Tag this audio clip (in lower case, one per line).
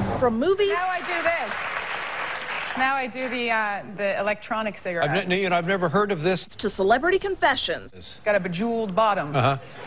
speech